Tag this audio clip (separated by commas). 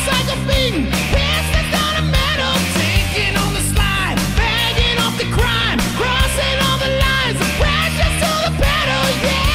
Music